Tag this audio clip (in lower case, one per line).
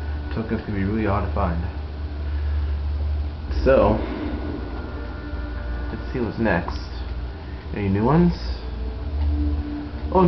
music
speech